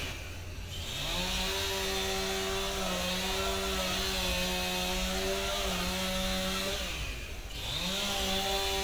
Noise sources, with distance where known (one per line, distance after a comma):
unidentified powered saw, near